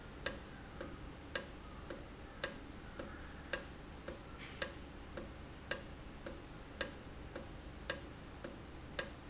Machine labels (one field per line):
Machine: valve